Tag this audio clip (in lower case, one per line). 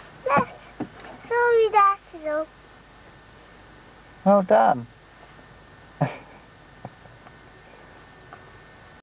speech